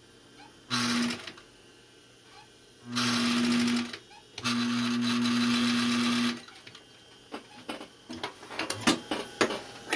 A sewing machines works